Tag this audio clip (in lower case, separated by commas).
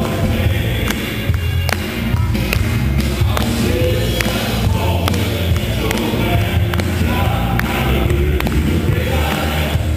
choir, music